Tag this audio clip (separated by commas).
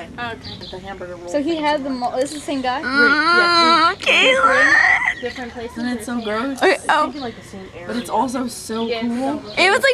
Whimper, Speech